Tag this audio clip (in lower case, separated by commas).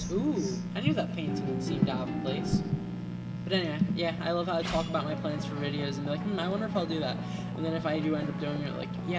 music, speech